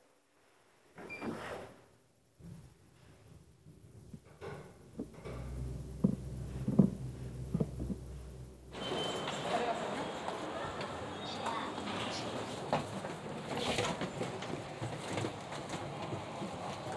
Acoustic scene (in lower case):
elevator